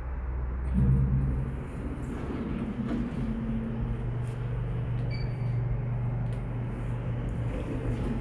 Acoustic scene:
elevator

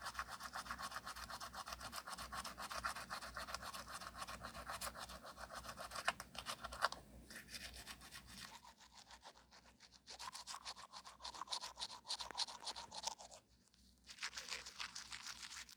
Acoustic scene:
restroom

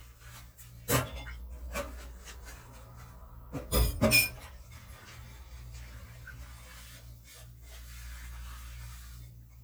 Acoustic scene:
kitchen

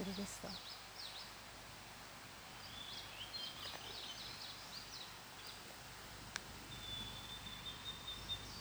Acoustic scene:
park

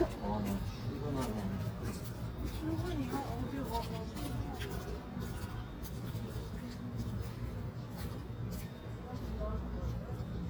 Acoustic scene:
residential area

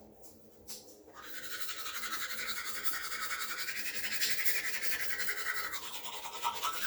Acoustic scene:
restroom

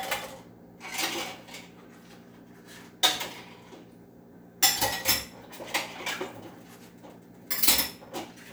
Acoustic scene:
kitchen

